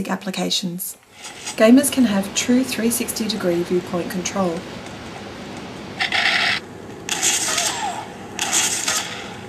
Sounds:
speech

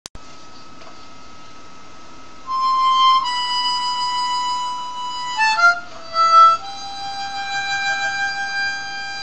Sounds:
playing harmonica

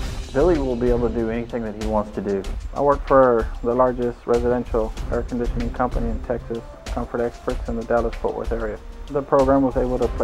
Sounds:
music, speech

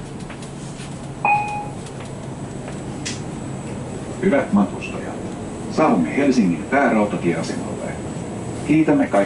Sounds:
vehicle, speech

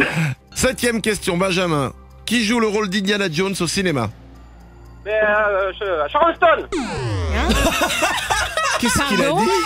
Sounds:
speech

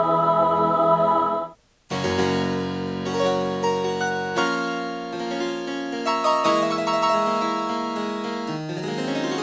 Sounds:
electric piano, piano, keyboard (musical)

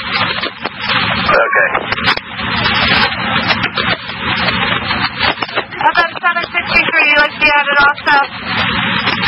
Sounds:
speech

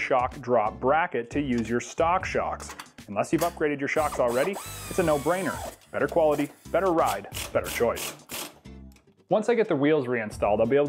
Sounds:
speech

